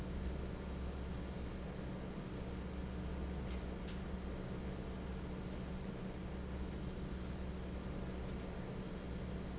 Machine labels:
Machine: fan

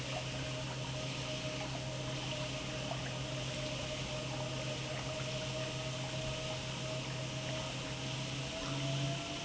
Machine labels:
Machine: pump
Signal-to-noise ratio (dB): -6 dB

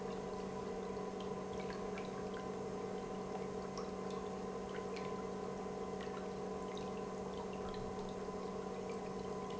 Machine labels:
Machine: pump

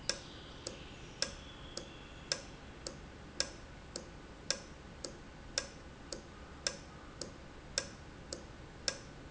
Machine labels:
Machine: valve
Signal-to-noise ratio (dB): 6 dB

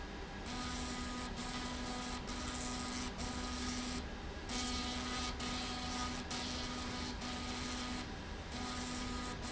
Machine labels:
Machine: slide rail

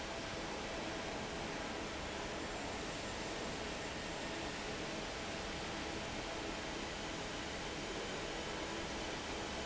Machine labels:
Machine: fan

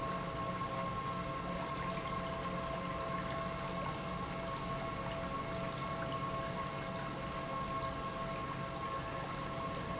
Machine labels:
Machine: pump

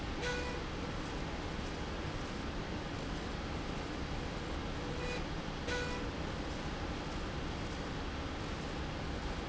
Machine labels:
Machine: slide rail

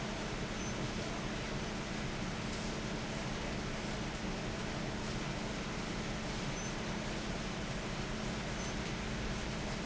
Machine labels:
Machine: fan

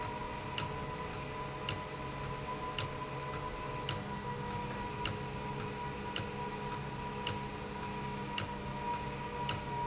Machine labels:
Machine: valve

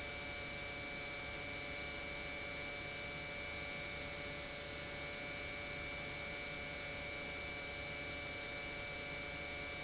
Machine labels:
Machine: pump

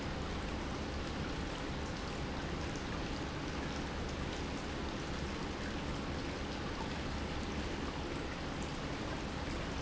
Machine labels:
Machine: pump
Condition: normal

